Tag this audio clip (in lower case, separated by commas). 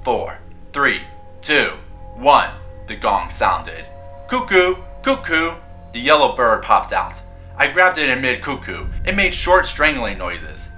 speech, music